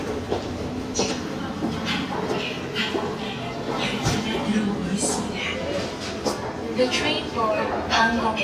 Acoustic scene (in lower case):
subway station